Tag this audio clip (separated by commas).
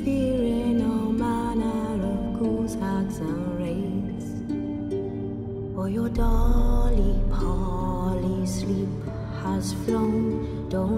Lullaby, Music